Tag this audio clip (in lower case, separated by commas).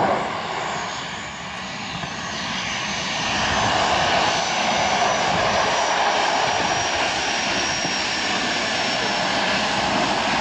outside, rural or natural, aircraft, vehicle